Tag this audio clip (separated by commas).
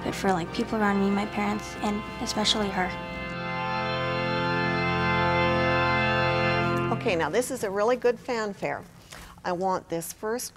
Keyboard (musical), Musical instrument, Music, Piano, Speech